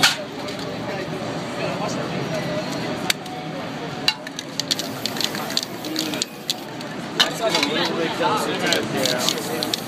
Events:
0.0s-0.2s: generic impact sounds
0.0s-9.8s: hubbub
0.0s-9.8s: roadway noise
0.4s-0.7s: generic impact sounds
3.0s-3.3s: clapping
4.1s-4.9s: rattle
4.6s-7.0s: spray
5.0s-5.7s: rattle
5.8s-6.9s: rattle
7.2s-7.3s: generic impact sounds
7.3s-9.8s: male speech
7.5s-7.7s: generic impact sounds
8.6s-9.8s: rattle
9.1s-9.8s: spray

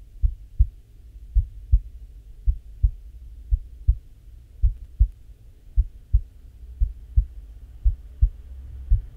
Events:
0.1s-9.1s: heart sounds

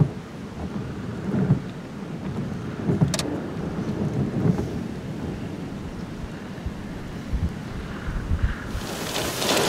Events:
0.0s-9.6s: wind
0.5s-1.5s: wind noise (microphone)
2.2s-4.8s: wind noise (microphone)
3.1s-3.2s: tick
4.5s-4.6s: tick
7.2s-7.5s: wind noise (microphone)
7.9s-8.2s: caw
8.0s-8.8s: wind noise (microphone)
8.4s-8.6s: caw
8.7s-9.6s: rain

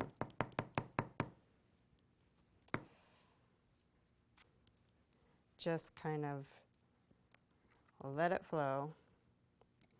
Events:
0.0s-9.9s: background noise
2.6s-2.8s: tap
2.8s-3.4s: breathing
8.0s-8.9s: female speech
8.8s-9.2s: surface contact
9.7s-9.9s: generic impact sounds

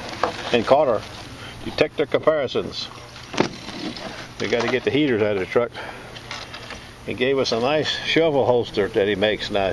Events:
0.0s-0.5s: generic impact sounds
0.0s-9.7s: mechanisms
0.4s-1.0s: male speech
0.8s-1.2s: generic impact sounds
1.6s-2.9s: male speech
2.9s-3.5s: generic impact sounds
3.7s-4.2s: generic impact sounds
4.3s-5.7s: male speech
4.4s-4.8s: generic impact sounds
6.2s-6.8s: generic impact sounds
7.0s-9.7s: male speech

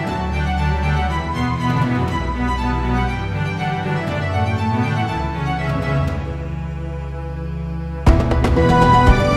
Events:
0.0s-9.3s: music

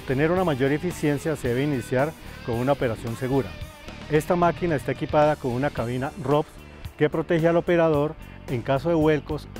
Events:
0.0s-2.1s: male speech
0.0s-9.5s: music
2.2s-2.4s: breathing
2.4s-3.4s: male speech
4.1s-6.4s: male speech
6.6s-6.8s: breathing
7.0s-8.1s: male speech
8.2s-8.4s: breathing
8.5s-9.4s: male speech

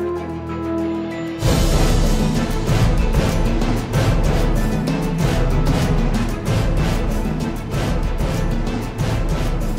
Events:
0.0s-9.7s: music

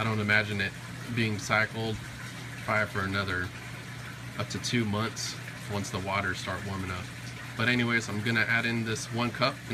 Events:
0.0s-0.7s: man speaking
0.0s-9.7s: mechanisms
1.0s-2.0s: man speaking
2.6s-3.6s: man speaking
4.3s-5.4s: man speaking
5.7s-7.1s: man speaking
7.5s-9.7s: man speaking

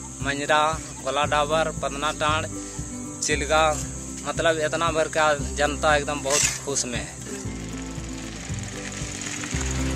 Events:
0.0s-9.9s: insect
0.0s-9.9s: music
0.2s-0.8s: male speech
1.0s-2.4s: male speech
2.6s-2.9s: breathing
3.2s-3.7s: male speech
4.2s-6.4s: male speech
6.3s-6.6s: generic impact sounds
6.7s-7.2s: male speech
7.1s-9.9s: motorcycle

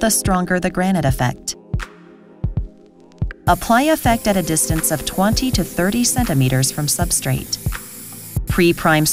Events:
0.0s-1.5s: woman speaking
0.0s-9.1s: music
2.4s-3.3s: background noise
3.4s-7.6s: woman speaking
3.4s-9.1s: spray
8.5s-9.1s: woman speaking

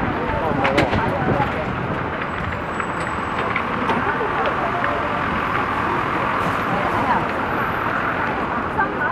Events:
0.0s-9.1s: crowd
0.5s-1.0s: walk
1.3s-1.5s: walk
1.9s-3.0s: walk
3.3s-4.0s: walk
4.4s-5.3s: walk
5.5s-5.7s: walk
7.0s-7.2s: walk

